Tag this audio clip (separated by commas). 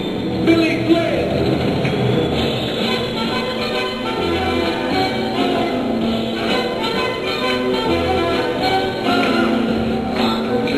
Speech, Music